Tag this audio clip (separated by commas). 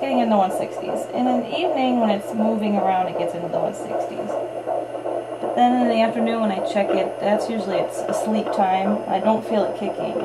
Speech